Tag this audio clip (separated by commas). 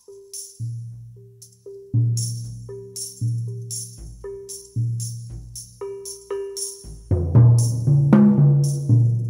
Music